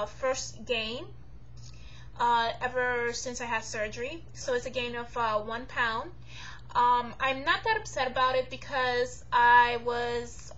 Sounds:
Speech

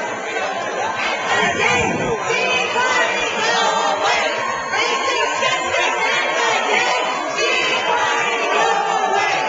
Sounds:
Speech

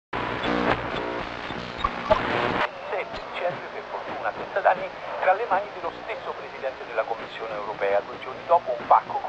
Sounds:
Speech, Sound effect

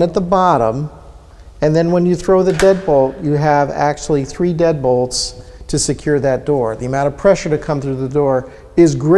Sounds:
Speech

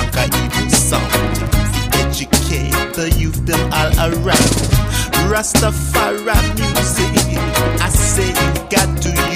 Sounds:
Rhythm and blues, Music

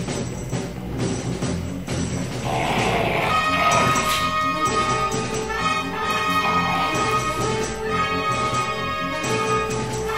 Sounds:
Animal, pets, Dog, Music

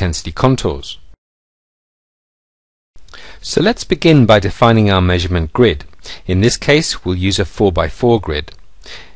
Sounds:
Speech

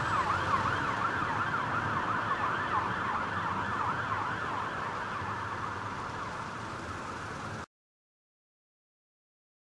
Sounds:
fire truck (siren)

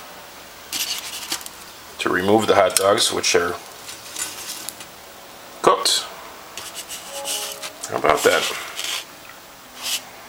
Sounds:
Speech

